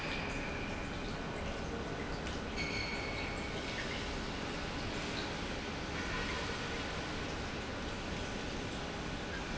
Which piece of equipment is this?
pump